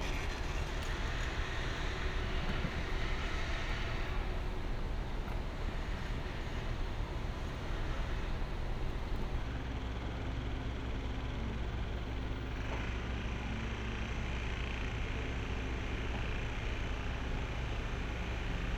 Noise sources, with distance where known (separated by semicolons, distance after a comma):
small-sounding engine